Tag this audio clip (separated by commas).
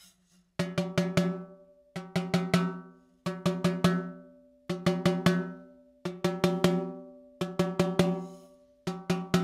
playing snare drum